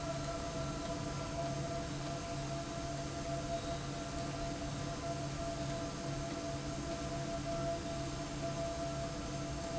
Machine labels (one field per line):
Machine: slide rail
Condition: abnormal